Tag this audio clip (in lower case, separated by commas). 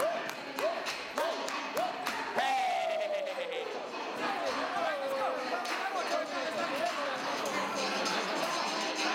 music, speech